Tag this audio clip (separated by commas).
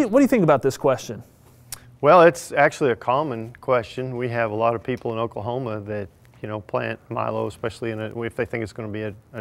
Speech